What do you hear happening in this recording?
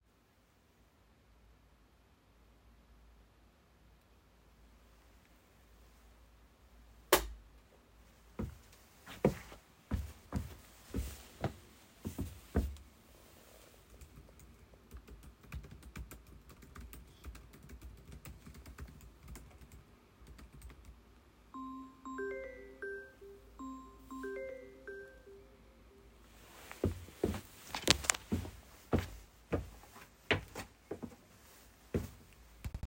i switched on the light, walked to my desk with laptop, sat down, started typing, my phone rang, i took the call, walked away from the desk